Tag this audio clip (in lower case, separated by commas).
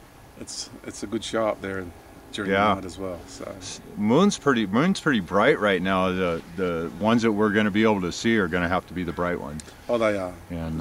speech